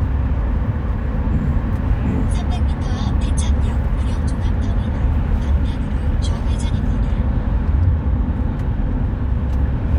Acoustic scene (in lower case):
car